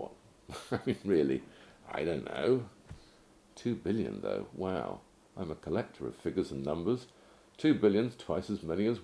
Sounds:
speech
inside a small room

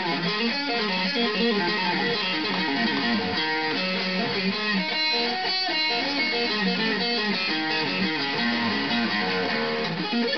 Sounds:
musical instrument
music
guitar
bass guitar
acoustic guitar

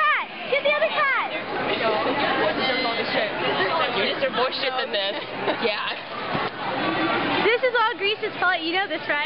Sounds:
speech

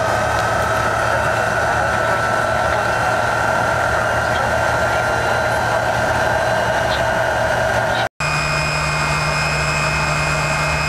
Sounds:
heavy engine (low frequency)
vehicle
idling
engine

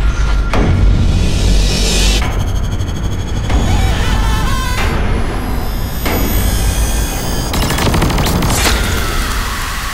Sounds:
sound effect
music

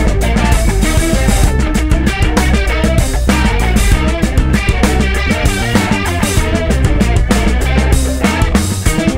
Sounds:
music

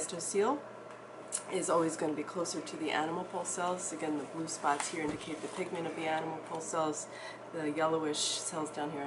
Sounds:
speech

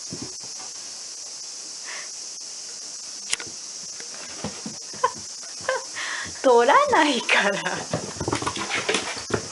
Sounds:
speech

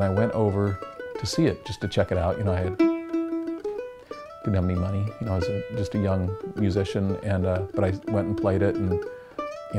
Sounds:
music
mandolin
speech

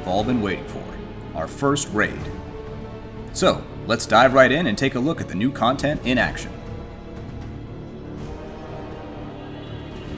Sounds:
music
speech

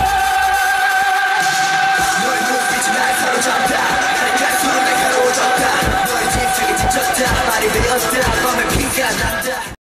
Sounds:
rapping
music
male singing

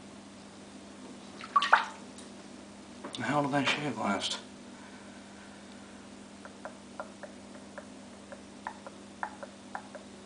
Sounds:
speech

